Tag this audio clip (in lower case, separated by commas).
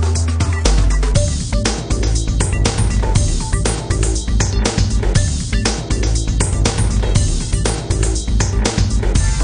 music